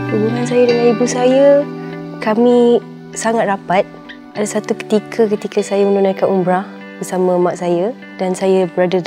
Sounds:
Speech, Music

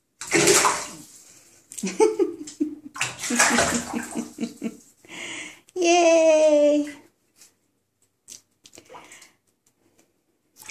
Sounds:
Bathtub (filling or washing)

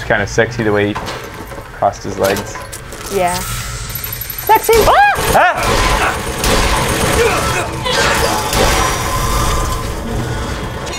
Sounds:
Speech

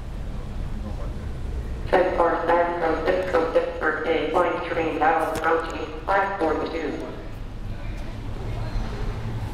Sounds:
Speech

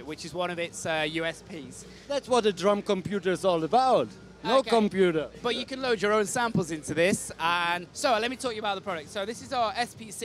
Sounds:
Speech

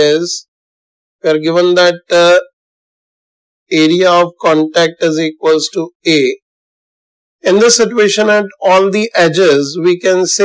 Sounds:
Speech

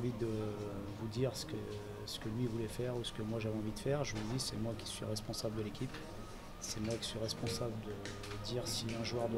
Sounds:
Speech

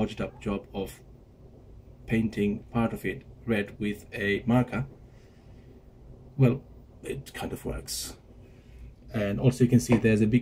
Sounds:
Speech

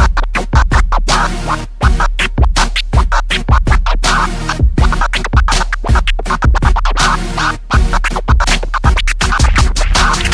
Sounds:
Scratching (performance technique), Music, inside a small room

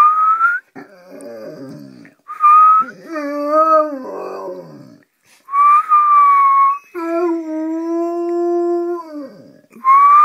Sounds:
dog howling

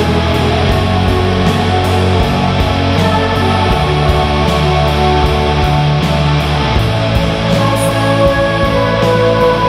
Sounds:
Drum kit, Bass drum, Percussion, Drum, Rimshot

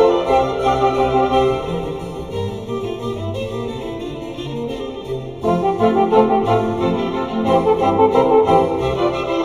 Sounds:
French horn, Brass instrument

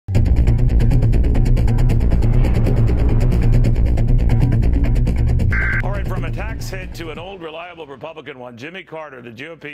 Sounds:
inside a small room, Music, Speech

